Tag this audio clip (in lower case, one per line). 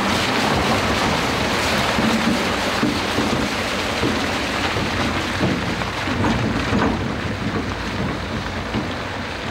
outside, rural or natural
vehicle